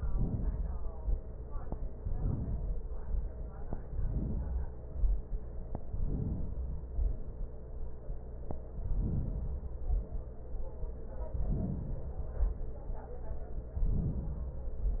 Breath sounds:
Inhalation: 0.00-1.05 s, 1.97-2.84 s, 3.83-4.86 s, 5.79-6.83 s, 8.67-9.80 s, 11.34-12.31 s, 13.72-14.97 s
Exhalation: 2.84-3.84 s, 4.88-5.79 s, 6.83-8.10 s, 9.80-11.11 s, 12.34-13.59 s

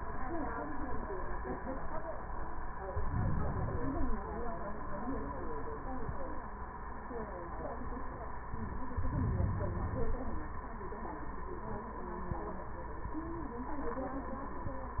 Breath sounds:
Inhalation: 2.92-3.93 s, 8.92-10.18 s
Exhalation: 3.85-4.64 s

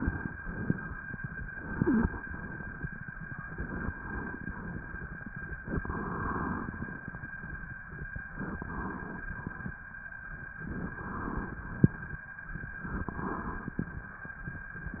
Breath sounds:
Inhalation: 5.83-7.12 s, 8.37-9.28 s, 10.62-11.59 s, 12.90-13.87 s
Wheeze: 1.67-2.11 s

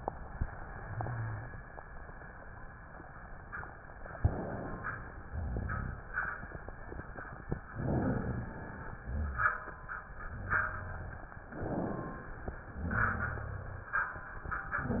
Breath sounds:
Inhalation: 4.21-5.20 s, 7.72-8.71 s, 11.48-12.51 s
Exhalation: 5.29-6.28 s, 8.92-9.68 s, 12.75-13.78 s
Rhonchi: 5.28-6.00 s, 8.99-9.72 s, 12.83-13.83 s

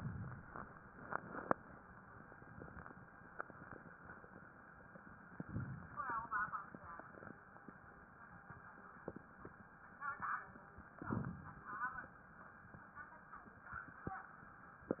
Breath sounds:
Inhalation: 5.39-6.49 s, 10.99-12.00 s

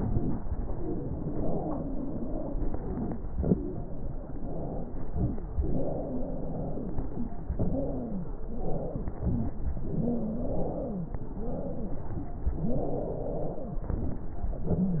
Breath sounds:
Inhalation: 0.00-0.47 s, 3.21-3.74 s, 5.07-5.60 s, 9.12-9.75 s, 11.32-12.21 s, 13.89-14.56 s
Exhalation: 0.49-3.10 s, 3.76-5.05 s, 5.64-7.33 s, 7.60-9.04 s, 9.82-11.15 s, 12.63-13.80 s, 12.67-13.81 s
Wheeze: 0.00-0.46 s, 0.49-3.08 s, 3.76-5.04 s, 5.07-5.59 s, 5.62-7.32 s, 7.56-9.03 s, 9.84-11.14 s, 11.32-12.21 s, 12.63-13.80 s, 13.91-14.54 s, 14.67-15.00 s
Crackles: 3.19-3.73 s, 9.10-9.73 s

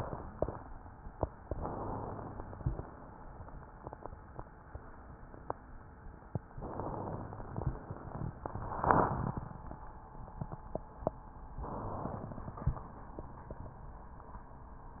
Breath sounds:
Inhalation: 1.48-2.46 s, 6.55-7.46 s, 11.62-12.38 s
Exhalation: 2.46-3.53 s
Crackles: 1.48-2.46 s, 6.55-7.46 s

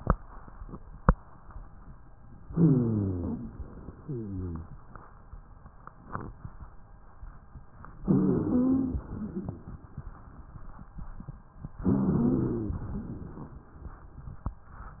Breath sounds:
Inhalation: 2.48-3.50 s, 8.06-9.08 s, 11.80-12.80 s
Exhalation: 3.68-4.70 s, 9.08-9.96 s, 12.86-13.64 s
Wheeze: 2.48-3.50 s, 3.98-4.70 s, 8.06-9.08 s, 9.12-9.68 s, 11.80-12.80 s

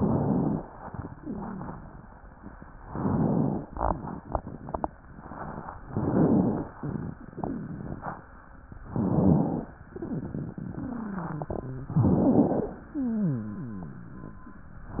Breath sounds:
Inhalation: 0.00-0.67 s, 2.88-3.63 s, 5.94-6.68 s, 8.90-9.70 s, 11.95-12.75 s
Wheeze: 12.96-14.50 s
Rhonchi: 1.14-2.07 s

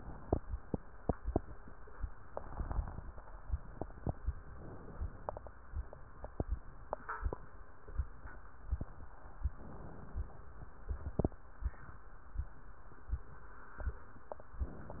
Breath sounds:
Inhalation: 4.57-5.50 s, 9.54-10.47 s

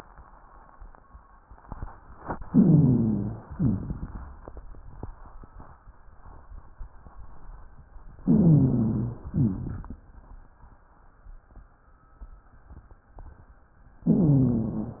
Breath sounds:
Inhalation: 2.49-3.36 s, 8.25-9.26 s, 14.08-15.00 s
Exhalation: 3.57-4.24 s, 9.34-10.01 s
Rhonchi: 2.49-3.36 s, 8.25-9.26 s, 14.08-15.00 s
Crackles: 3.57-4.24 s, 9.34-10.01 s

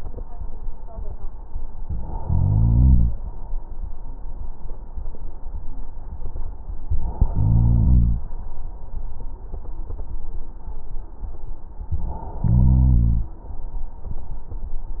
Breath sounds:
Inhalation: 2.18-3.18 s, 7.32-8.31 s, 12.42-13.40 s

